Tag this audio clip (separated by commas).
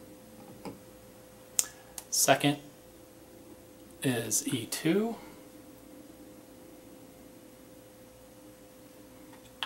Speech